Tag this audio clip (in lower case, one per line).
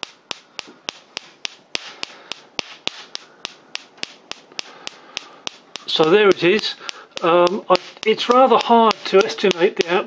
speech